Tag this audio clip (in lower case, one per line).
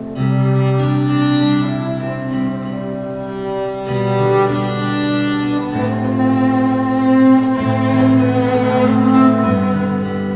musical instrument
fiddle
music